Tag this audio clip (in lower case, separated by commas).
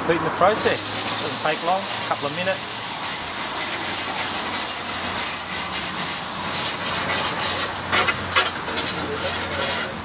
frying (food), sizzle